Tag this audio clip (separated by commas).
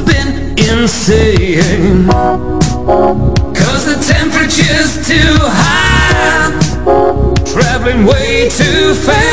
Music, Rhythm and blues